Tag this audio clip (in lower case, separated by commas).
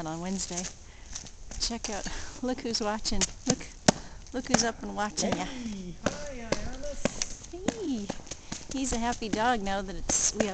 speech